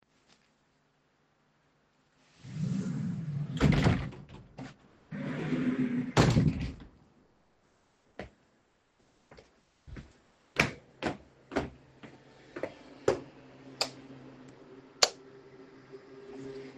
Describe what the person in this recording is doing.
I was done with putting my clothes on. So I closed my drawers and walked towards my living room. Then I turned on the light in the living room and off in the Hallway.